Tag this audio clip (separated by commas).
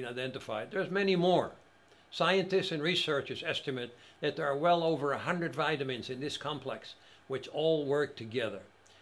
Speech